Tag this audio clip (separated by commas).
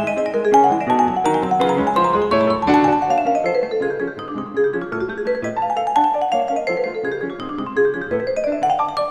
playing vibraphone